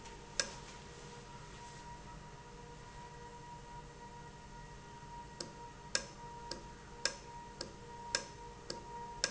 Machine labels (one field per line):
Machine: valve